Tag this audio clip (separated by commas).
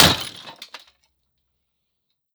Shatter, Glass